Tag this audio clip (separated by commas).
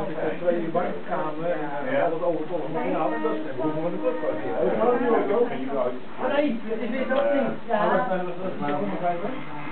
Speech